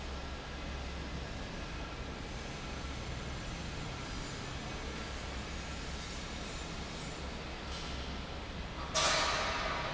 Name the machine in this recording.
fan